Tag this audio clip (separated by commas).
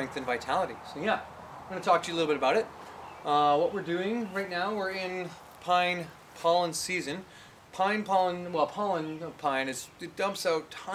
Speech